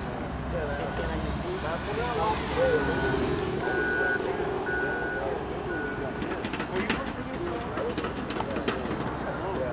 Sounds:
Speech

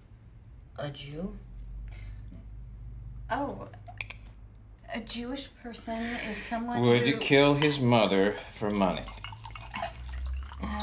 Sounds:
Speech

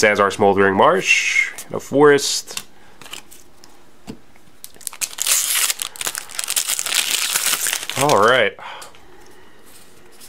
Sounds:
Speech

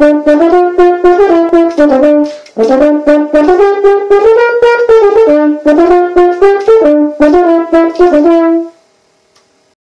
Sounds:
Musical instrument, playing french horn, French horn, Brass instrument, Music

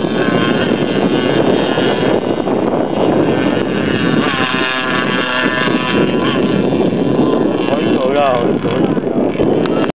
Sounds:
Wind noise (microphone), Wind, speedboat, Boat

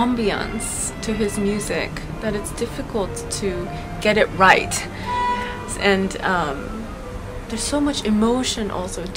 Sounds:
Music, Speech

